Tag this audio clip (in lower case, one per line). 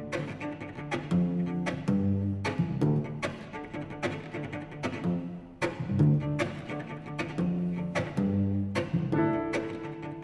cello
musical instrument
music